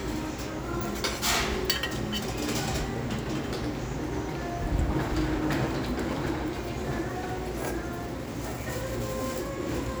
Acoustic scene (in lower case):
restaurant